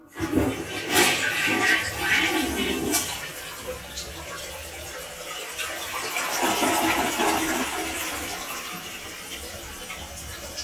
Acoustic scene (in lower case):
restroom